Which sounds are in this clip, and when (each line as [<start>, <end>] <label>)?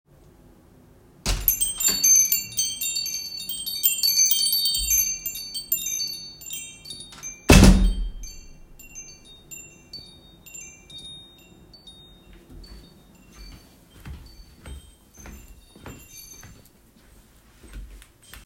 [1.26, 16.83] bell ringing
[7.36, 8.41] door
[13.45, 18.43] footsteps